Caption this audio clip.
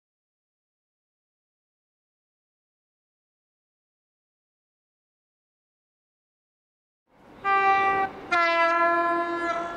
A small train horn blows